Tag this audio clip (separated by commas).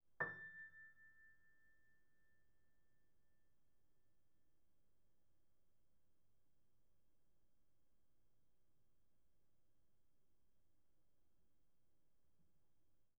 Keyboard (musical), Piano, Musical instrument, Music